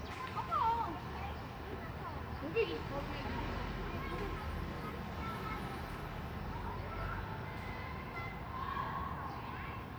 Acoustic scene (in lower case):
residential area